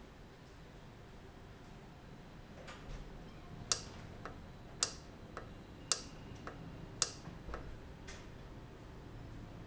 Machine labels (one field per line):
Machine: valve